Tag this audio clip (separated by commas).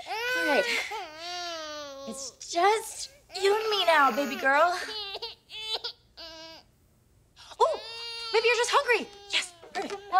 Speech